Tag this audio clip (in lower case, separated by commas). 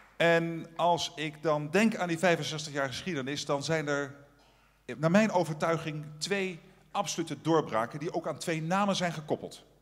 speech, man speaking, narration